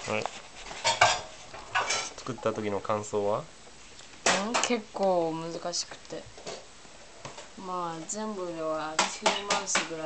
Foreign speaking and dishes clanging